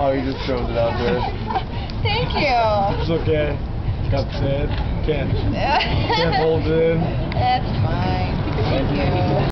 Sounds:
speech

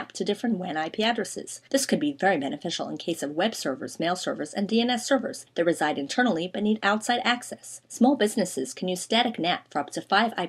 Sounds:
speech

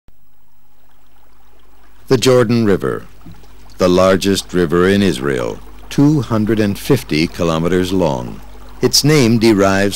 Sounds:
speech

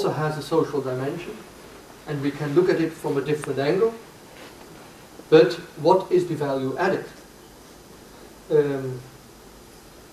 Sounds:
inside a small room, speech

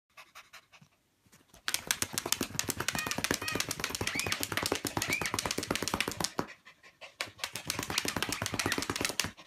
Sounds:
pets

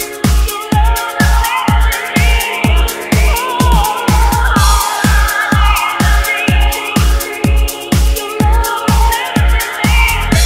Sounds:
electronica, music, disco

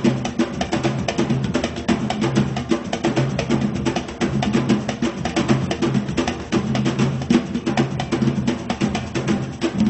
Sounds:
music, percussion

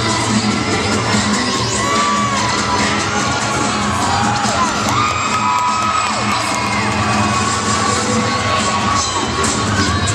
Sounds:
cheering, music

